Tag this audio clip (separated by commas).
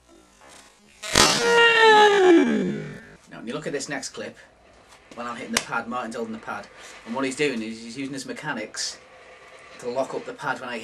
Speech, inside a small room